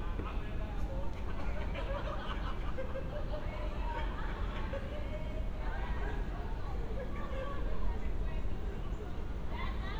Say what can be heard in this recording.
person or small group talking